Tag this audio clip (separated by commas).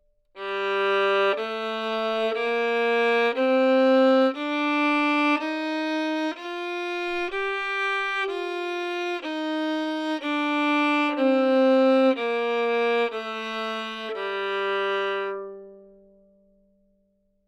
Musical instrument, Music, Bowed string instrument